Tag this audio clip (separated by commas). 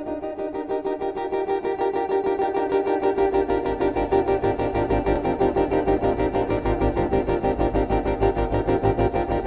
Theremin